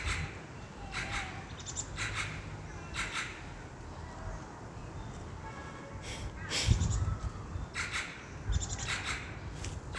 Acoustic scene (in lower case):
park